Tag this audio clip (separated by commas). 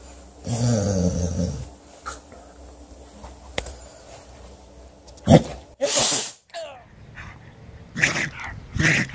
people sneezing